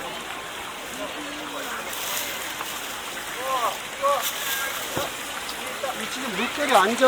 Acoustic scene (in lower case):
park